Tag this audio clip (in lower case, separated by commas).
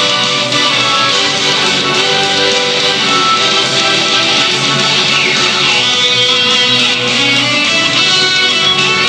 soundtrack music, music